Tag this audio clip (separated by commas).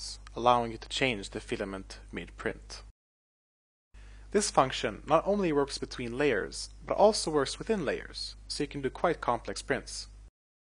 Speech